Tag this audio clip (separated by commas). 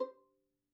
Music, Musical instrument, Bowed string instrument